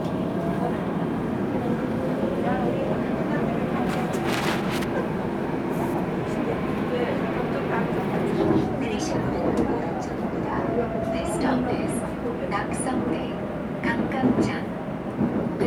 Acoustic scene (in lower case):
subway train